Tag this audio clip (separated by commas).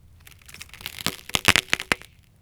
Crack